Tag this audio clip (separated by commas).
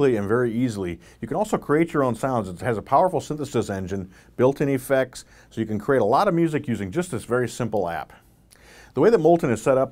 Speech